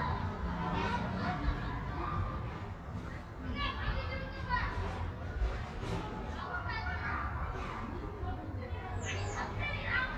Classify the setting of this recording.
residential area